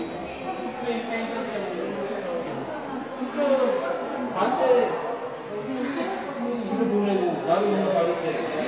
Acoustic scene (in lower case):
subway station